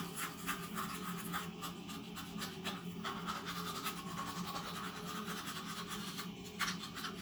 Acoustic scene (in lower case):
restroom